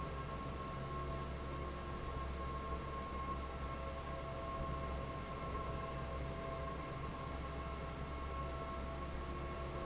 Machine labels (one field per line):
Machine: fan